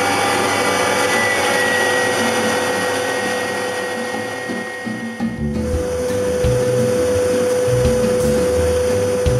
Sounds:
music

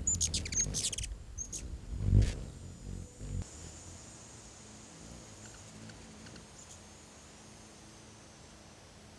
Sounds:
bird

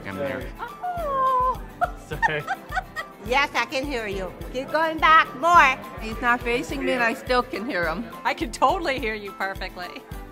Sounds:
music, speech

